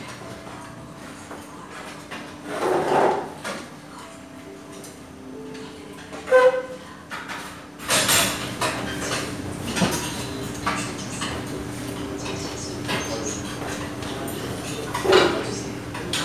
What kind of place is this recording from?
restaurant